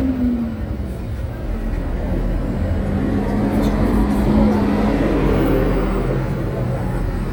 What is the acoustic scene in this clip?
street